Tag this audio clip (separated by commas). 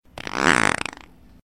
Fart